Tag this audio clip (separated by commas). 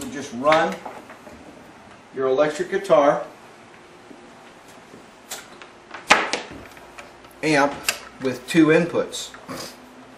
Speech